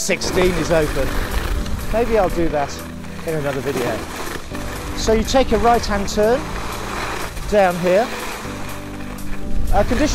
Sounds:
skiing

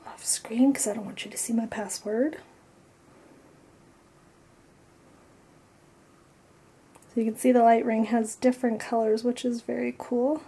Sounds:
Speech

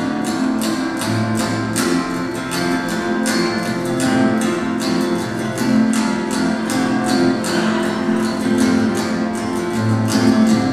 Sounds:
Music, Background music

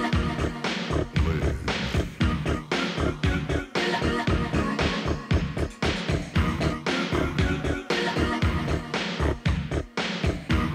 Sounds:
Music

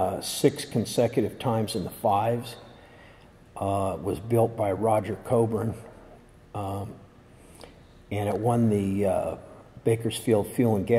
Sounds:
Speech

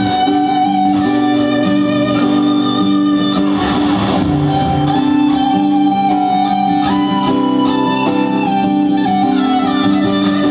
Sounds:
Music, Wedding music

